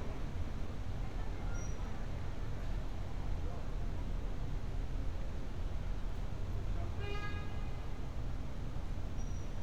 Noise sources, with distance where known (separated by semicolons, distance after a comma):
car horn, far